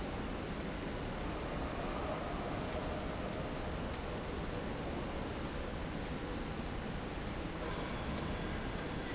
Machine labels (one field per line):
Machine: slide rail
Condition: abnormal